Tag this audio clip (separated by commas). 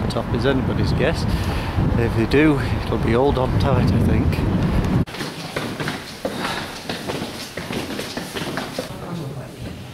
Speech